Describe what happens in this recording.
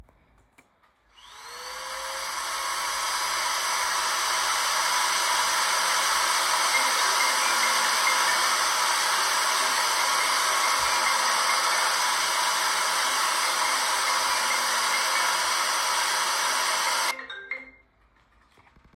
I started vacuum cleaning the living room floor. While the vacuum cleaner was running my phone began ringing nearby. The phone continued ringing while the vacuum cleaner was still operating. After a short moment the ringing stopped and the vacuum cleaner was turned off.